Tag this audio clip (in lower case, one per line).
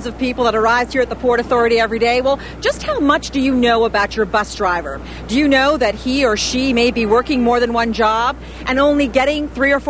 speech